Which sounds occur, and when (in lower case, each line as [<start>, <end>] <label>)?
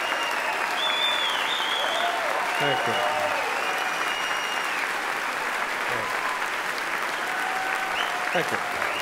[0.00, 2.10] whistling
[0.00, 4.13] cheering
[0.00, 9.01] applause
[2.44, 4.88] whistling
[2.55, 3.00] man speaking
[5.87, 6.06] man speaking
[5.89, 6.51] cheering
[6.92, 9.01] cheering
[7.91, 8.47] whistling
[8.32, 8.60] man speaking